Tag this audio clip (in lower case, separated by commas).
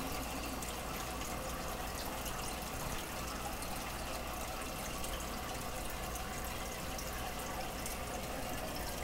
water, water tap